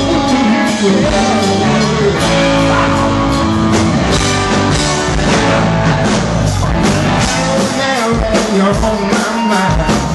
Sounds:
Music, Male singing

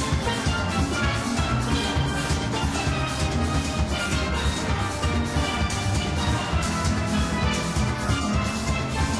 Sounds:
playing steelpan

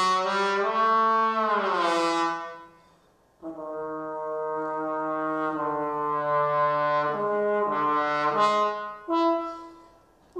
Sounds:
Brass instrument, playing trombone, Trombone

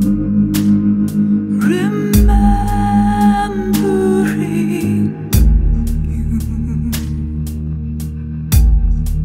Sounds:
Music

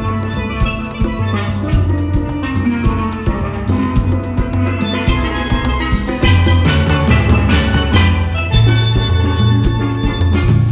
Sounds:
playing steelpan

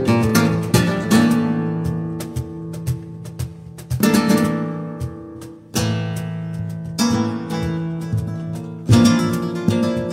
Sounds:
Music, Flamenco, Strum, Musical instrument, Guitar, Plucked string instrument

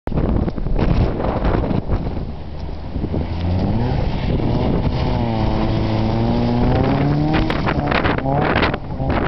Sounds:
Car, Vehicle

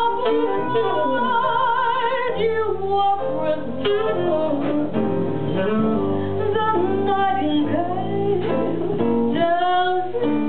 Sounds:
Brass instrument

